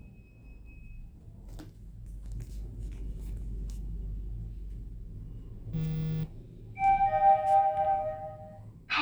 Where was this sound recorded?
in an elevator